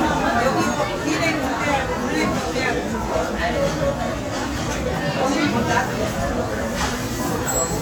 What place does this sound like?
restaurant